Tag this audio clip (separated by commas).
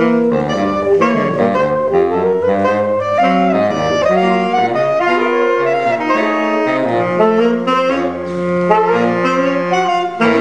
Saxophone, Brass instrument